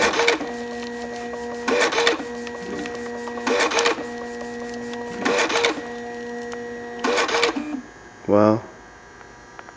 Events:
[0.00, 7.83] printer
[0.41, 1.63] rub
[0.77, 0.87] tick
[0.98, 1.16] tick
[1.28, 1.53] generic impact sounds
[2.22, 3.44] rub
[2.42, 2.51] tick
[2.73, 2.91] tick
[2.88, 3.07] generic impact sounds
[3.23, 3.38] generic impact sounds
[3.94, 5.21] rub
[4.17, 4.63] generic impact sounds
[4.65, 4.76] tick
[4.89, 4.96] tick
[5.76, 6.32] rub
[6.45, 6.56] tick
[7.59, 9.75] mechanisms
[8.24, 8.61] male speech
[9.15, 9.24] tick
[9.54, 9.72] tick

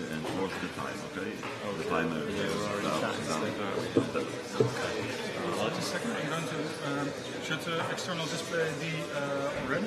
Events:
[0.00, 9.85] speech noise
[0.01, 9.85] crowd

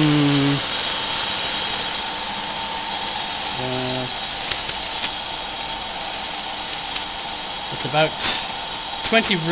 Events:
[0.00, 0.59] human voice
[0.00, 9.51] mechanisms
[3.50, 4.08] human voice
[4.47, 4.53] tick
[4.64, 4.70] tick
[4.95, 5.04] tick
[6.71, 6.77] tick
[6.91, 7.02] tick
[7.69, 8.38] man speaking
[9.02, 9.51] man speaking

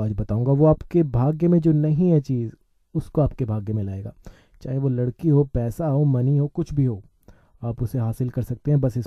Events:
[0.00, 2.53] male speech
[0.01, 9.05] background noise
[2.95, 4.14] male speech
[4.57, 7.08] male speech
[7.57, 9.05] male speech

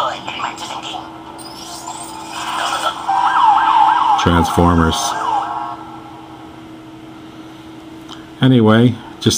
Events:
[0.00, 1.05] human voice
[0.00, 9.35] mechanisms
[1.32, 3.04] sound effect
[3.03, 5.72] police car (siren)
[8.06, 8.20] generic impact sounds

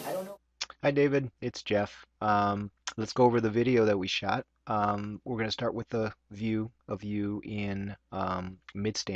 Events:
[0.01, 9.15] background noise
[0.03, 0.32] man speaking
[0.52, 2.04] man speaking
[2.15, 2.75] man speaking
[2.81, 4.43] man speaking
[4.59, 7.98] man speaking
[8.07, 9.15] man speaking

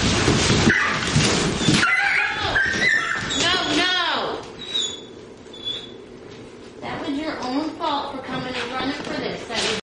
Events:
[0.00, 9.66] mechanisms
[5.48, 6.07] whimper (dog)
[6.80, 9.66] female speech
[8.44, 9.66] generic impact sounds

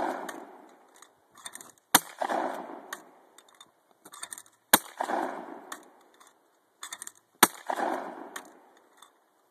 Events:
[0.00, 0.57] gunshot
[0.00, 9.50] background noise
[0.58, 1.01] generic impact sounds
[1.27, 1.76] generic impact sounds
[1.89, 2.57] gunshot
[2.83, 3.03] generic impact sounds
[3.33, 3.74] generic impact sounds
[3.98, 4.50] generic impact sounds
[4.62, 5.64] gunshot
[5.58, 5.80] generic impact sounds
[5.93, 6.32] generic impact sounds
[6.72, 7.14] generic impact sounds
[7.38, 8.31] gunshot
[8.31, 8.53] generic impact sounds
[8.72, 9.08] generic impact sounds

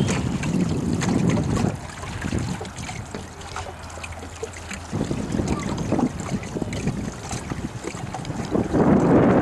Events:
[0.00, 0.23] generic impact sounds
[0.00, 1.79] wind noise (microphone)
[0.00, 9.41] mechanisms
[0.00, 9.41] stream
[0.00, 9.41] wind
[0.41, 0.65] generic impact sounds
[0.93, 1.44] generic impact sounds
[2.17, 2.63] wind noise (microphone)
[3.10, 3.22] generic impact sounds
[3.38, 3.72] generic impact sounds
[4.67, 4.81] generic impact sounds
[4.88, 9.41] wind noise (microphone)
[5.15, 5.96] child speech
[5.46, 5.81] generic impact sounds
[6.22, 6.94] child speech
[7.21, 7.40] generic impact sounds
[7.72, 8.46] generic impact sounds

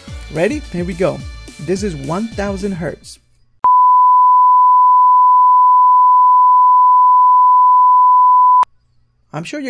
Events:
[0.00, 3.13] music
[3.60, 8.64] sine wave
[8.64, 9.65] mechanisms
[9.24, 9.65] male speech

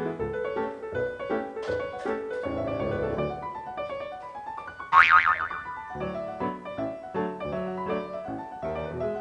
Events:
[0.00, 9.20] music
[0.00, 9.20] wind
[1.58, 1.76] generic impact sounds
[1.95, 2.11] generic impact sounds
[2.28, 2.44] generic impact sounds
[4.14, 4.32] generic impact sounds
[4.89, 5.54] boing

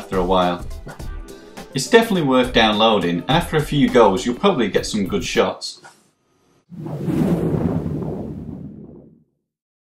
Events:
[0.00, 0.56] man speaking
[0.00, 5.62] music
[0.01, 6.58] background noise
[1.69, 5.91] man speaking
[6.63, 9.49] sound effect

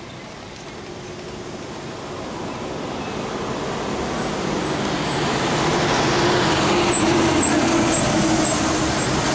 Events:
[0.00, 9.34] bus
[0.00, 9.34] wind
[0.01, 1.51] bird call
[2.42, 3.38] bird call
[6.90, 7.05] tire squeal
[7.40, 7.50] tire squeal
[7.91, 8.04] tire squeal
[8.41, 8.53] tire squeal

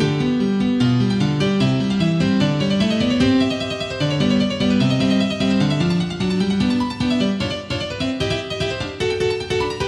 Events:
[0.00, 9.85] music

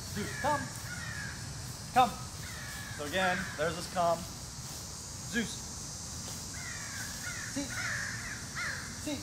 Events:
[0.00, 9.22] cricket
[0.00, 9.22] environmental noise
[0.00, 9.22] wind
[8.53, 8.78] caw
[9.00, 9.20] male speech

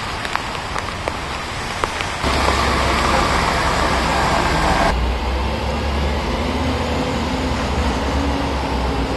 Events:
[0.00, 9.15] rain on surface
[0.00, 9.15] roadway noise
[0.18, 0.24] tick
[0.29, 0.36] tick
[0.72, 0.79] tick
[1.02, 1.07] tick
[1.77, 1.83] tick
[1.94, 2.00] tick
[2.16, 4.90] roadway noise

